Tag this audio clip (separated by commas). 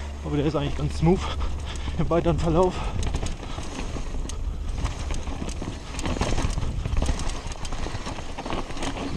Speech